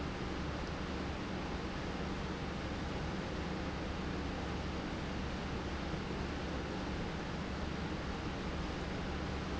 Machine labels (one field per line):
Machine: pump